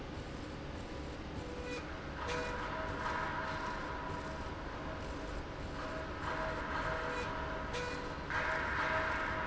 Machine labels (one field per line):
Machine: slide rail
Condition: normal